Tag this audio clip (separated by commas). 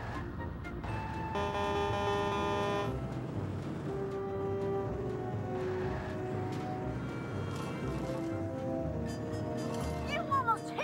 Music